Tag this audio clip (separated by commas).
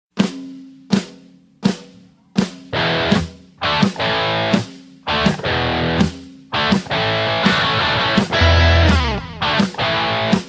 Drum, Music